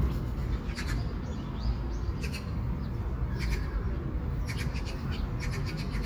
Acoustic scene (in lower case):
park